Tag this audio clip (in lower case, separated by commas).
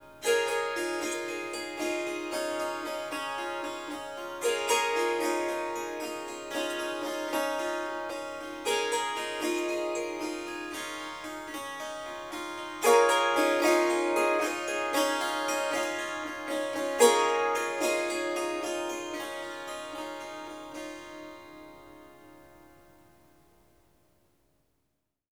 music, musical instrument, harp